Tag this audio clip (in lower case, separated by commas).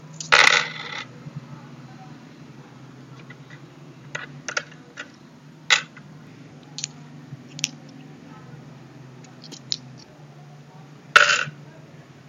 coin (dropping), domestic sounds